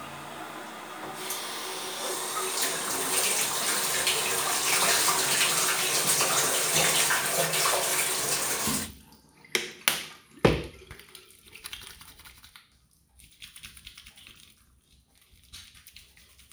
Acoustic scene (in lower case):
restroom